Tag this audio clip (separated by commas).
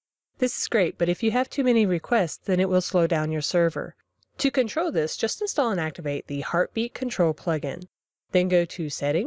Speech